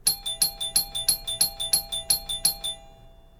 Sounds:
Doorbell, Alarm, Domestic sounds, Door

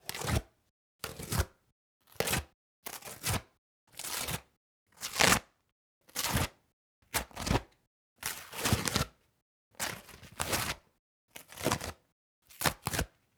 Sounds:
Tearing

